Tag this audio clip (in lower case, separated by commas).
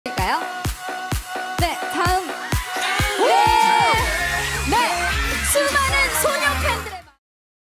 music, speech